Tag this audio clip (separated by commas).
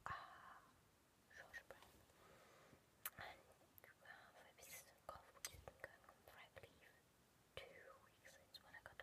Speech